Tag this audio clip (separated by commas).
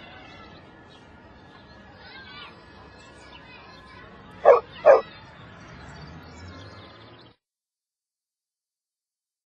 Bow-wow, Speech